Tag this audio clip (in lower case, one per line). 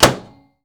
door
domestic sounds
microwave oven
slam